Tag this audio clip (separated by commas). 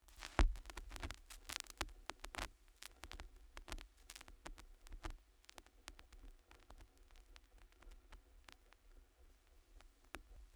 Crackle